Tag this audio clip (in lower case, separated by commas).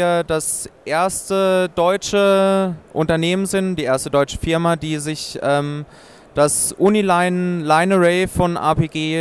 speech